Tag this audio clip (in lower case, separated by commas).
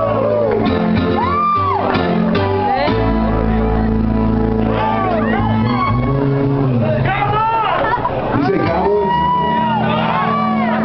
music, speech